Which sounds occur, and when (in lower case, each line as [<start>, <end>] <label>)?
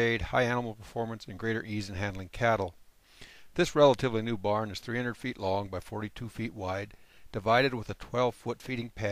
[0.00, 2.69] male speech
[0.00, 9.11] background noise
[2.91, 3.53] breathing
[3.55, 6.85] male speech
[6.86, 7.30] breathing
[7.31, 9.11] male speech